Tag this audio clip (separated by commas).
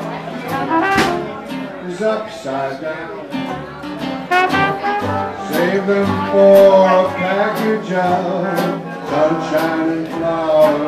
Music